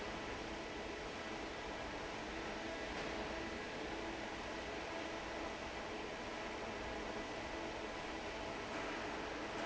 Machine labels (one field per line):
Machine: fan